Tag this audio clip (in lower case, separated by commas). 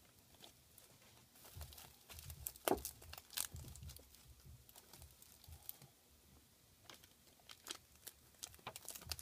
crinkling